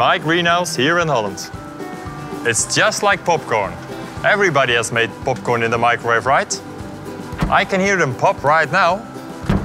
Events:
0.0s-1.5s: man speaking
0.0s-9.6s: music
2.4s-3.7s: man speaking
4.2s-5.0s: man speaking
5.4s-6.6s: man speaking
7.3s-9.0s: man speaking
9.4s-9.6s: generic impact sounds

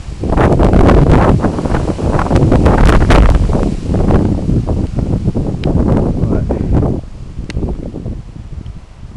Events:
0.0s-9.1s: rustle
0.0s-9.1s: wind noise (microphone)
5.6s-5.7s: tick
5.9s-6.0s: tick
6.3s-6.6s: man speaking
7.5s-7.5s: tick
8.6s-8.7s: tick

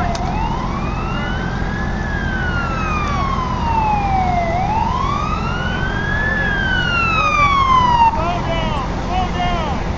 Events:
0.0s-8.1s: fire truck (siren)
0.1s-0.3s: generic impact sounds
9.1s-9.8s: man speaking
9.1s-9.8s: shout

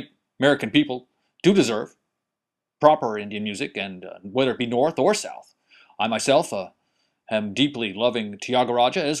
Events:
0.0s-0.2s: male speech
0.0s-9.2s: background noise
0.4s-1.0s: male speech
1.0s-1.4s: breathing
1.4s-1.9s: male speech
2.8s-5.4s: male speech
5.5s-5.9s: breathing
5.9s-6.8s: male speech
6.7s-7.2s: breathing
7.2s-9.2s: male speech

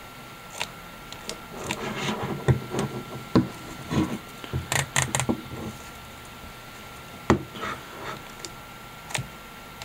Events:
0.0s-9.8s: mechanisms
7.3s-7.4s: generic impact sounds
7.5s-8.2s: surface contact

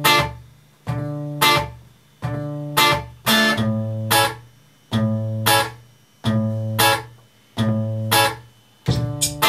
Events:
0.0s-9.4s: mechanisms
8.8s-9.4s: electronic tuner
8.8s-9.4s: music

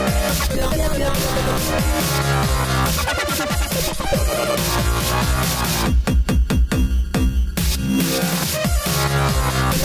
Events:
0.0s-9.8s: music
0.4s-1.2s: sound effect
2.9s-3.6s: sound effect

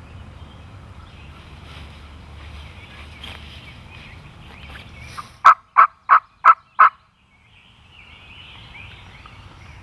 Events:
0.0s-9.8s: background noise
0.0s-9.8s: bird song
1.5s-2.0s: surface contact
2.3s-2.7s: surface contact
2.9s-3.6s: surface contact
3.9s-4.1s: surface contact
5.4s-5.6s: gobble
5.7s-5.9s: gobble
6.0s-6.2s: gobble
6.4s-6.5s: gobble
6.7s-6.9s: gobble

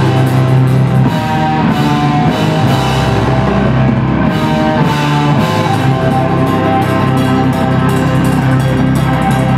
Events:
0.0s-9.5s: music

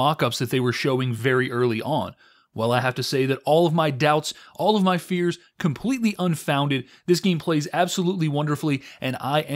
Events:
0.0s-2.1s: man speaking
0.0s-9.5s: background noise
2.1s-2.4s: breathing
2.4s-4.3s: man speaking
4.3s-4.5s: breathing
4.5s-5.3s: man speaking
5.3s-5.5s: breathing
5.5s-6.8s: man speaking
6.8s-7.0s: breathing
7.1s-8.7s: man speaking
8.7s-9.0s: breathing
9.0s-9.5s: man speaking

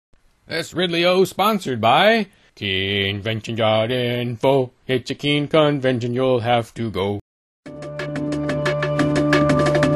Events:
0.1s-7.2s: mechanisms
0.3s-0.3s: tick
0.4s-2.3s: man speaking
2.2s-2.5s: breathing
2.6s-4.7s: male singing
4.9s-7.2s: male singing
7.6s-9.9s: music

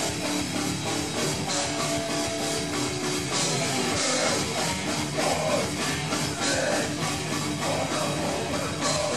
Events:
0.0s-9.1s: music
3.9s-4.3s: male singing
5.1s-6.0s: male singing
6.4s-7.2s: male singing
7.5s-9.1s: male singing

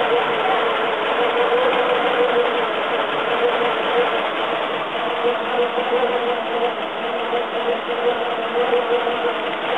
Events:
0.0s-9.7s: engine

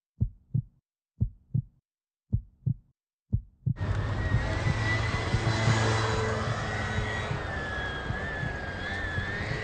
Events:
0.1s-0.6s: heartbeat
0.1s-0.8s: background noise
1.2s-1.8s: background noise
1.2s-1.6s: heartbeat
2.3s-2.7s: heartbeat
2.3s-2.9s: background noise
3.3s-3.7s: heartbeat
3.3s-3.7s: background noise
3.7s-9.6s: motor vehicle (road)
3.7s-9.6s: wind
3.9s-4.0s: tick
4.2s-4.7s: heartbeat
5.2s-5.7s: heartbeat
6.1s-6.5s: heartbeat
6.9s-7.4s: heartbeat
8.0s-8.5s: heartbeat
9.1s-9.6s: heartbeat

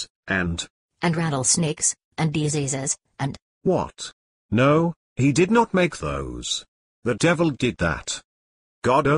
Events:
0.0s-0.1s: tick
0.2s-0.7s: man speaking
0.9s-1.9s: female speech
2.1s-2.9s: female speech
3.1s-3.4s: female speech
3.6s-4.1s: man speaking
4.5s-4.9s: man speaking
5.1s-6.7s: man speaking
7.0s-8.2s: man speaking

